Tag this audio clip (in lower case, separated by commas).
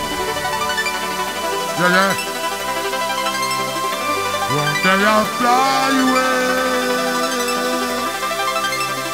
speech, music